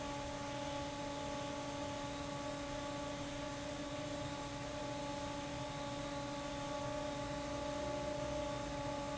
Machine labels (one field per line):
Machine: fan